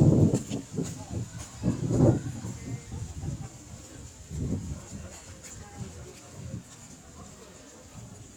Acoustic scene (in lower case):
park